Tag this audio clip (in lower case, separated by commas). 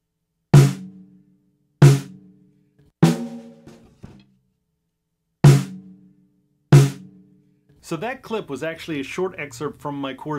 playing snare drum